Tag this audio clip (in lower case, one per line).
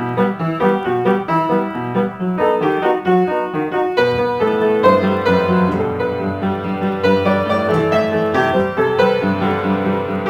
music